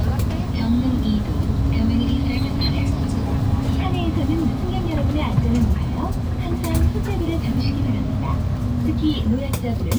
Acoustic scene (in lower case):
bus